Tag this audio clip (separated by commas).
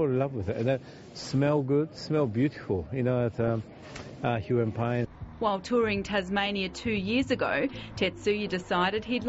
Speech